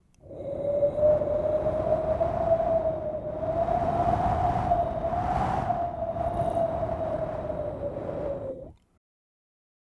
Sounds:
wind

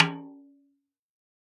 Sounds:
percussion
music
musical instrument
snare drum
drum

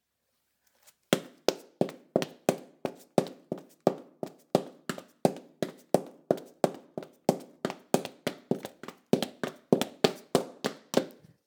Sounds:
run

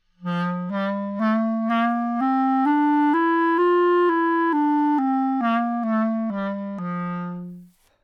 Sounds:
music
woodwind instrument
musical instrument

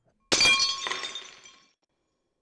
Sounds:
glass
shatter

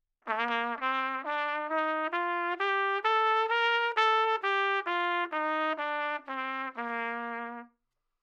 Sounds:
trumpet
musical instrument
brass instrument
music

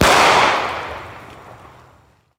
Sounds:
explosion

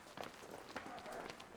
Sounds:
run

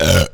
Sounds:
burping

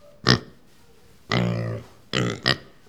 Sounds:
livestock
animal

